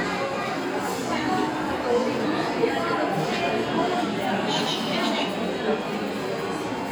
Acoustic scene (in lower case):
restaurant